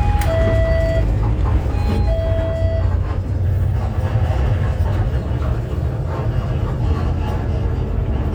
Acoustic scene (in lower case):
bus